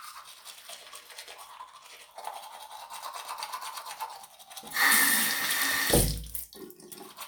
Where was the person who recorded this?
in a restroom